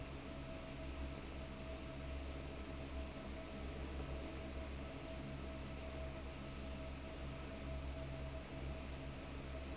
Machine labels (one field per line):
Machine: fan